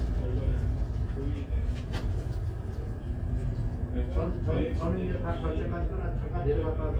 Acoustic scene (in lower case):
crowded indoor space